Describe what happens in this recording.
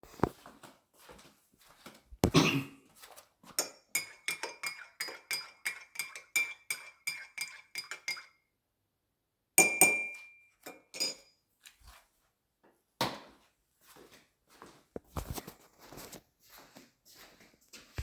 preparing tee then walking out for the kitchen